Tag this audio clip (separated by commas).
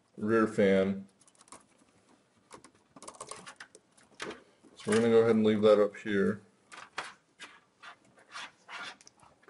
Speech, Typing